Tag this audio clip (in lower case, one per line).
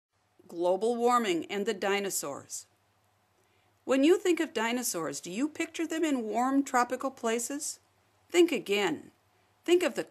monologue